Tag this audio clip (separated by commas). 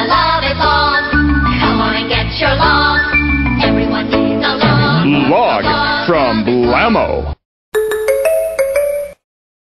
Music, Speech